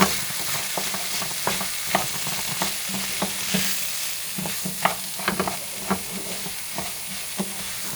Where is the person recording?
in a kitchen